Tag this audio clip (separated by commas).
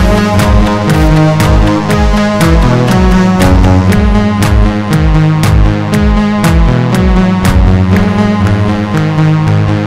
playing synthesizer